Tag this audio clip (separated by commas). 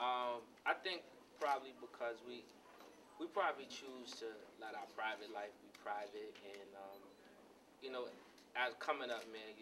Speech